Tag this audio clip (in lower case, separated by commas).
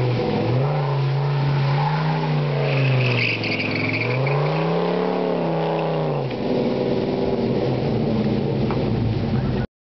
air brake, vehicle, truck